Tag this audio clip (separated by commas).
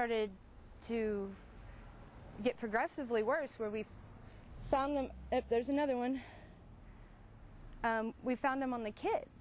Speech